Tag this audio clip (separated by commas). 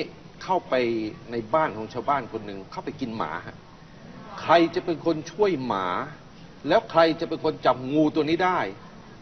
Speech